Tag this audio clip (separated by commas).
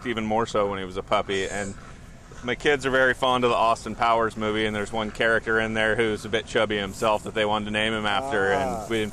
Speech